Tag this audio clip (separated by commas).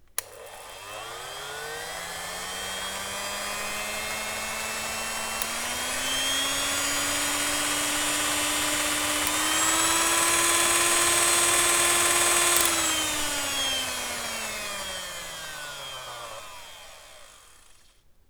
Domestic sounds